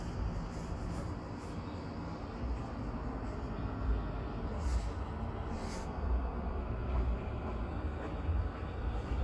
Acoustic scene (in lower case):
street